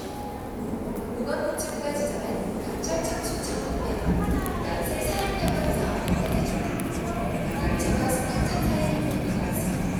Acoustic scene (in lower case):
subway station